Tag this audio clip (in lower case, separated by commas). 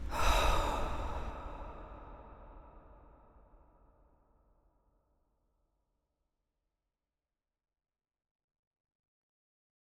respiratory sounds, breathing